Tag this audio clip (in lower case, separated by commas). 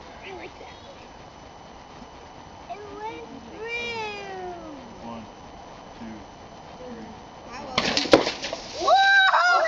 speech, thud